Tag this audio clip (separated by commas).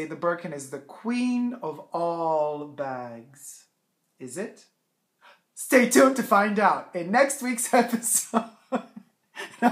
Speech, inside a small room